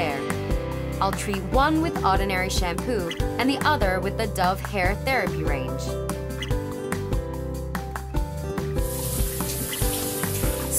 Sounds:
speech, bird, music

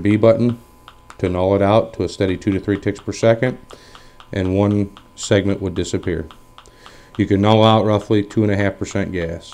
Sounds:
speech

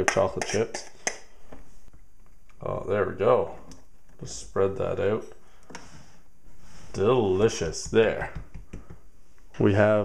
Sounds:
speech, inside a small room

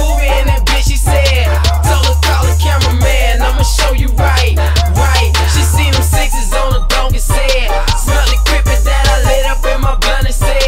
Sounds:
disco, blues, music

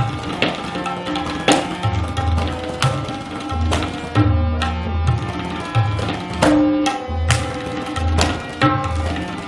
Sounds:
playing tabla

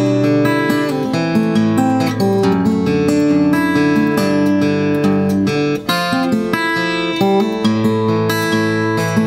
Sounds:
music

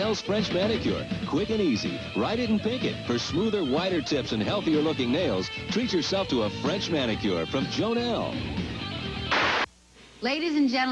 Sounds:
music, speech

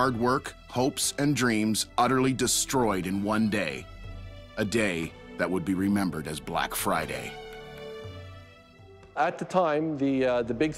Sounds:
music, speech

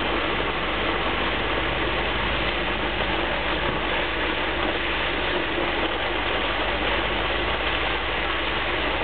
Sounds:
wind

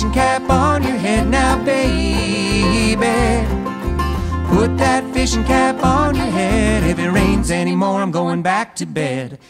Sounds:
folk music, music

